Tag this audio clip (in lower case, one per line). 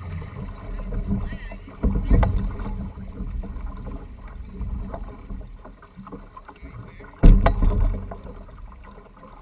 water vehicle
vehicle
speech